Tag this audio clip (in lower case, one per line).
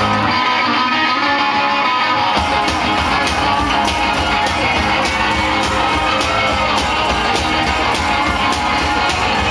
music